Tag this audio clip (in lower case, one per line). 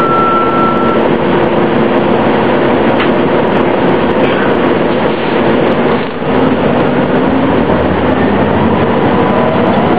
bus
vehicle